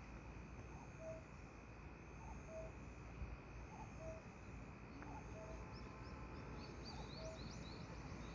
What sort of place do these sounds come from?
park